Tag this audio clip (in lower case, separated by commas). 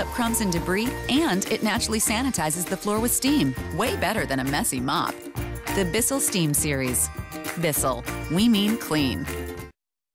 music, speech